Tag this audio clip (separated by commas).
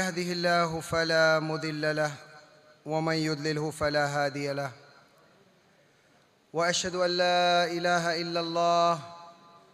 Narration, man speaking, Speech